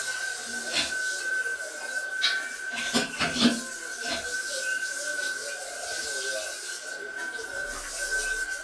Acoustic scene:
restroom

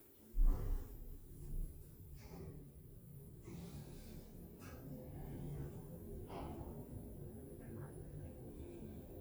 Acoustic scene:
elevator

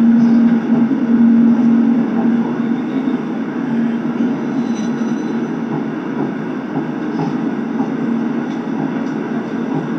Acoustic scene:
subway train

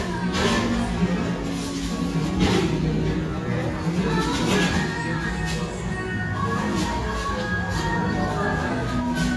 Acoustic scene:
restaurant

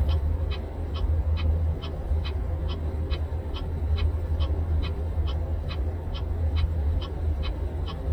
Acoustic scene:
car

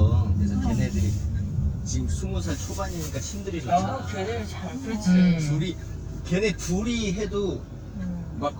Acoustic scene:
car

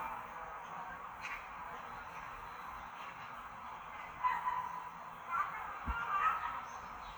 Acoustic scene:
park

